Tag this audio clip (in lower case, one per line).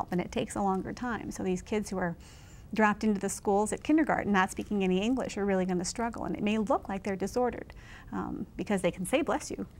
speech